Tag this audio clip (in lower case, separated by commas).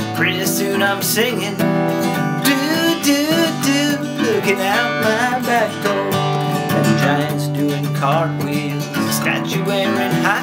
music